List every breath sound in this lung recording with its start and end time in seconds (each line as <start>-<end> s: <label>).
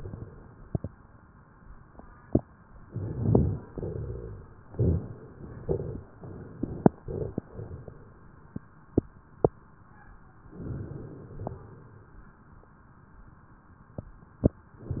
2.85-3.68 s: inhalation
2.85-3.68 s: crackles
3.74-4.61 s: exhalation
3.74-4.61 s: rhonchi
4.71-5.58 s: inhalation
4.71-5.58 s: crackles
5.66-6.09 s: crackles
5.66-6.53 s: exhalation
10.53-11.54 s: inhalation
10.53-11.54 s: crackles
11.57-12.58 s: exhalation